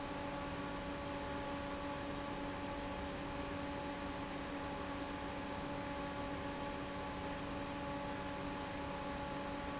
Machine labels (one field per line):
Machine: fan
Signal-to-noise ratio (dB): 0 dB